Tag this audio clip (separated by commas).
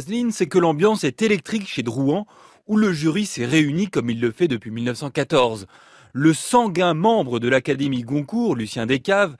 Speech